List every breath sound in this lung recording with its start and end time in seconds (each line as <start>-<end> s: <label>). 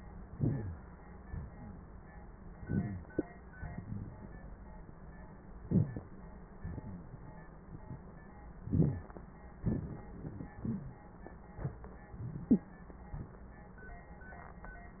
0.28-0.95 s: inhalation
0.40-0.81 s: wheeze
1.25-2.12 s: exhalation
2.60-3.20 s: inhalation
2.66-3.06 s: wheeze
3.60-4.77 s: exhalation
5.62-6.17 s: inhalation
6.61-7.46 s: exhalation
8.60-9.21 s: inhalation
8.69-9.06 s: wheeze
9.62-11.01 s: exhalation
12.18-12.78 s: inhalation
12.50-12.61 s: wheeze